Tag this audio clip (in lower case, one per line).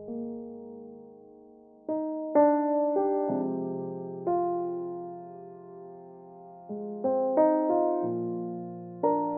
music